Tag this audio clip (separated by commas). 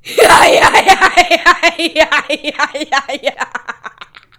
Laughter, Human voice